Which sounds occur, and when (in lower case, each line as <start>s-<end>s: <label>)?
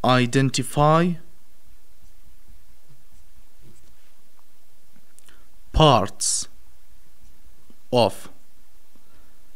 0.0s-9.5s: noise
0.0s-1.2s: male speech
5.7s-6.5s: male speech
7.9s-8.2s: male speech